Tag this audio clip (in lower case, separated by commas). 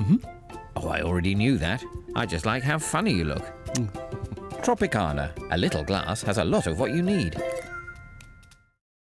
speech, music